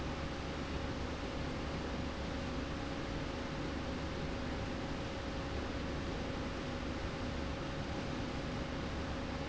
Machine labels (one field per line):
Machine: slide rail